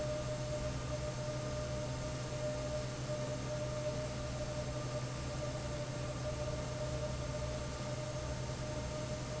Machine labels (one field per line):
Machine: fan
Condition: normal